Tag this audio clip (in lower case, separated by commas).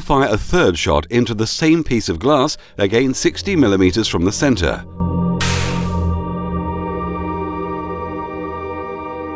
speech, singing bowl, music